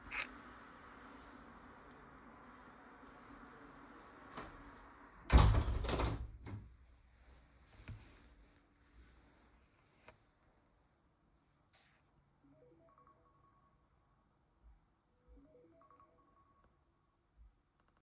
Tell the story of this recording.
I shut the window and then my alarm went off